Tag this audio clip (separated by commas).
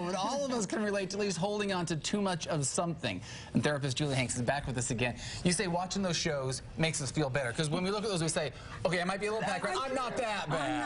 Speech